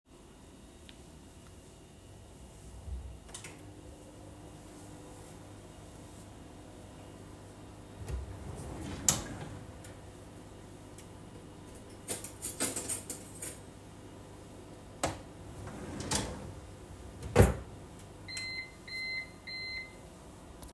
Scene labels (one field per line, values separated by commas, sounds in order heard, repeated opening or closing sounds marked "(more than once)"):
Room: kitchen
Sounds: microwave, wardrobe or drawer (more than once), cutlery and dishes